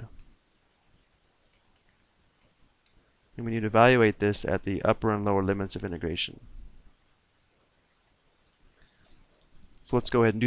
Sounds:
Speech

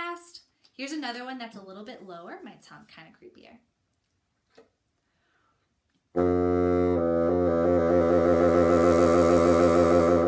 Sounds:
playing bassoon

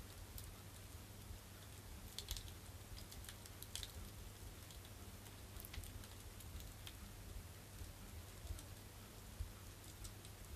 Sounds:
fire crackling

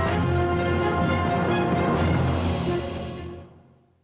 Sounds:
Music

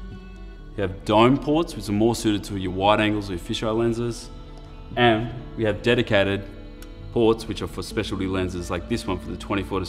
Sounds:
Music, Speech

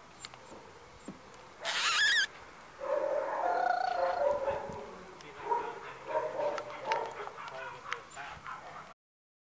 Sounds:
Animal, Dog, Domestic animals

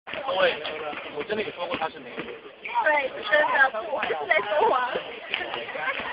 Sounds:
Speech

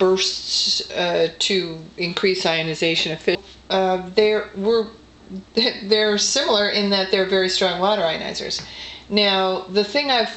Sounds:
Speech

